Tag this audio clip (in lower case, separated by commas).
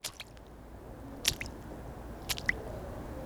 rain, raindrop, water